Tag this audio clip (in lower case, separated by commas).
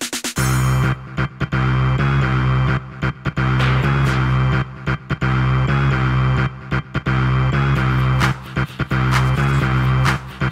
music